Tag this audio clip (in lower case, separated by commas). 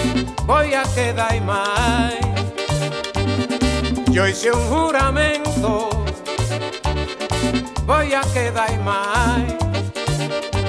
singing, salsa music, music